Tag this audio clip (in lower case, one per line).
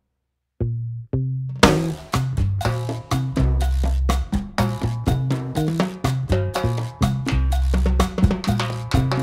music